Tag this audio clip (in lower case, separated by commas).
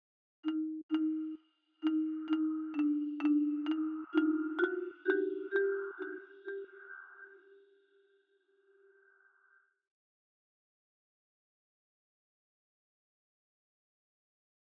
percussion, xylophone, music, mallet percussion, musical instrument